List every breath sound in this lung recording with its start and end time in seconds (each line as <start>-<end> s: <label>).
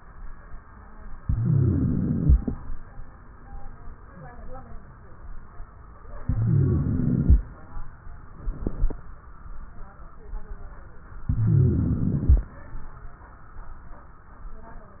1.23-2.54 s: inhalation
1.26-2.49 s: wheeze
6.20-7.43 s: inhalation
6.20-7.43 s: wheeze
11.27-12.49 s: inhalation
11.27-12.49 s: wheeze